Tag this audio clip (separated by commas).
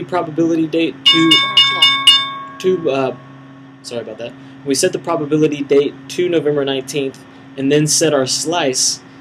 Speech